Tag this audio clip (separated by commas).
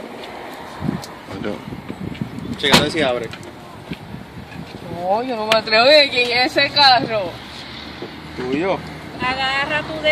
Speech